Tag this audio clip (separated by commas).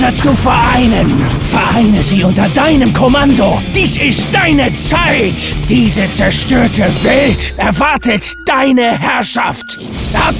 Speech, Music